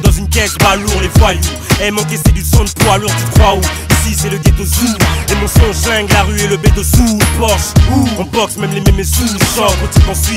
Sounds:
Music

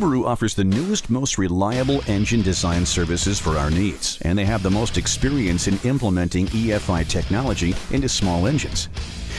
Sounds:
Music, Speech

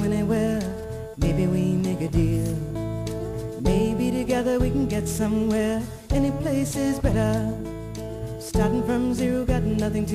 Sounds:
Music

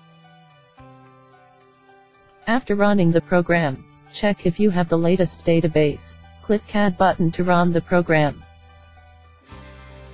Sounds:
Speech, Music

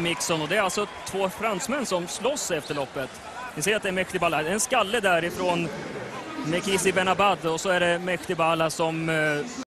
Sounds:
Speech

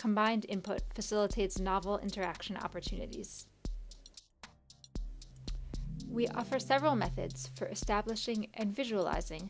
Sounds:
Music, Speech

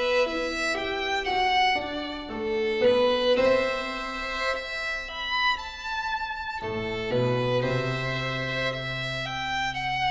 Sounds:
Musical instrument, Music, Violin

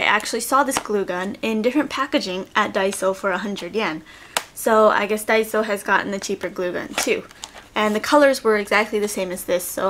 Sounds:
Speech

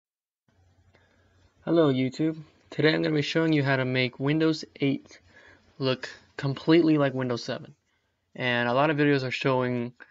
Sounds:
Speech

